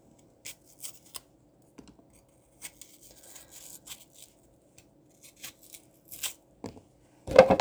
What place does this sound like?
kitchen